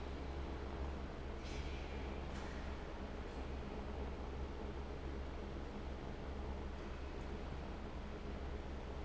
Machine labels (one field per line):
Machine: fan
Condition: abnormal